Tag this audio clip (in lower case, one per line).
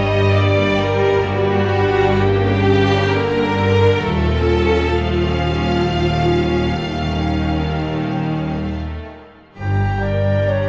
music